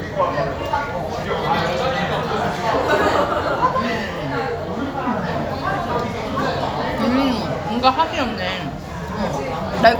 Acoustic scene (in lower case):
restaurant